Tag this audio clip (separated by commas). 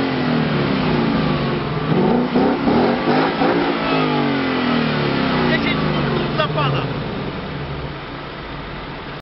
Speech